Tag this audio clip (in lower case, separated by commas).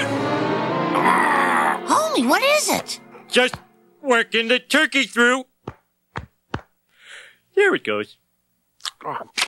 speech